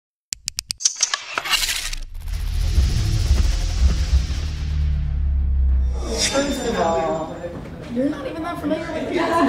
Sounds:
music
speech

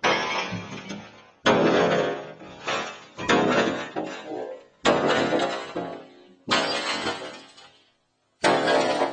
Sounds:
smash

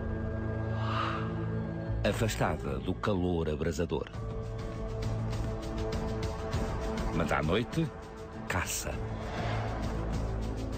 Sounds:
music
speech

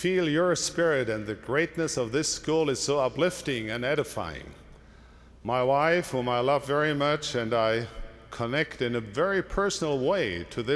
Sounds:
speech

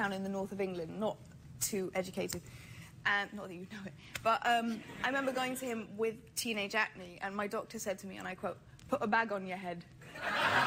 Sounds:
female speech

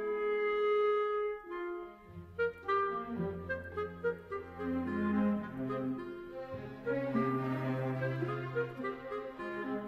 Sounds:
clarinet

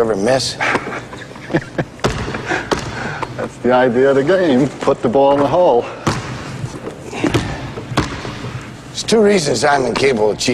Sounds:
basketball bounce
speech
inside a large room or hall

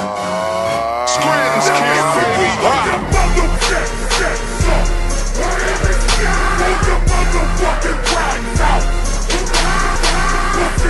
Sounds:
music

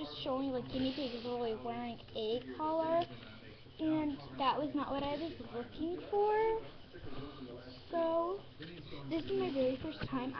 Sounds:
speech

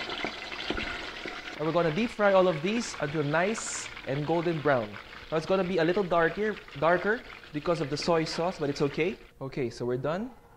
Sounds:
frying (food)
inside a small room
speech

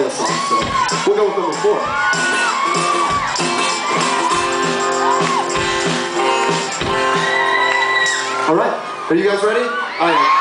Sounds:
speech
music
percussion

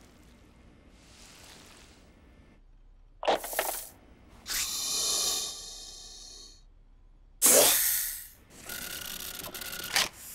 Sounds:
snake hissing

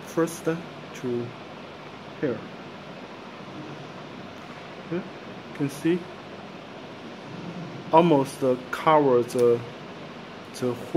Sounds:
speech

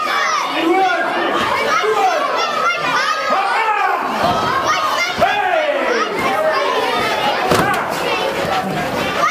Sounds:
speech

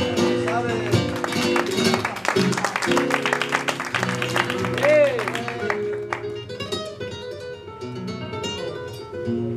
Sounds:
music

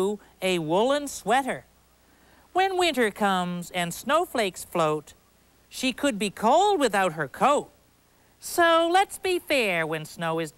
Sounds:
speech

